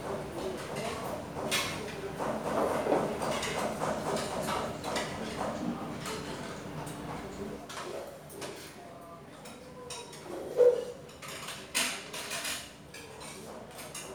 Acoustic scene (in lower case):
restaurant